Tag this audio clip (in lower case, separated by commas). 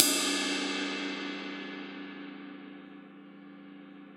crash cymbal, music, percussion, musical instrument, cymbal